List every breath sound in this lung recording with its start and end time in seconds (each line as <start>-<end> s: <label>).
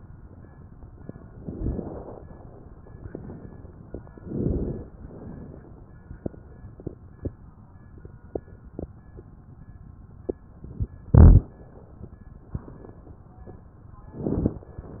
1.31-2.17 s: inhalation
4.19-4.92 s: inhalation
4.97-5.90 s: exhalation